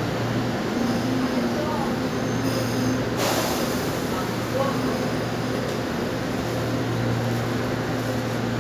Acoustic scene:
subway station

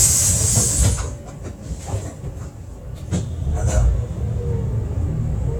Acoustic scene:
bus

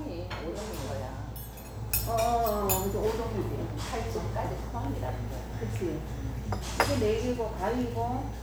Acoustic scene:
restaurant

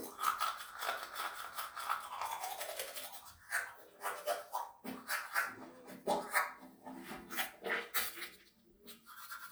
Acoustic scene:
restroom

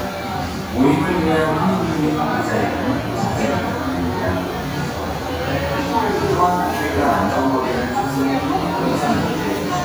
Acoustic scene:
crowded indoor space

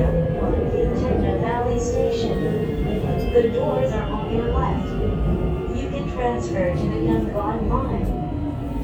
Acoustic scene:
subway train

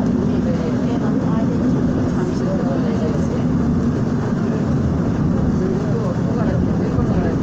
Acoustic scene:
subway train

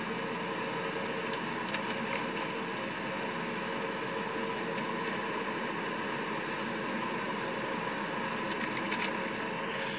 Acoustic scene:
car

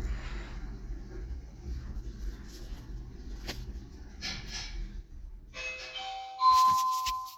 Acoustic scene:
elevator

